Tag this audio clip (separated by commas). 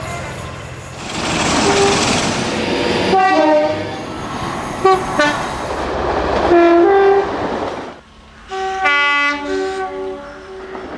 Bird